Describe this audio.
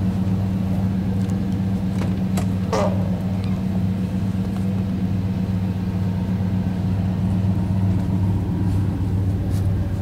A motor vehicle engine is idling, metal clicking occurs, and low squeak occurs